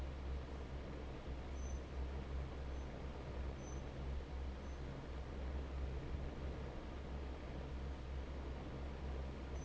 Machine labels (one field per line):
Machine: fan